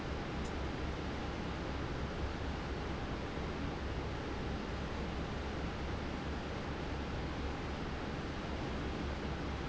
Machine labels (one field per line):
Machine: fan